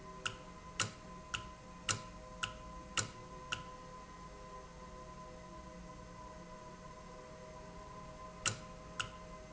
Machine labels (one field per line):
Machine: valve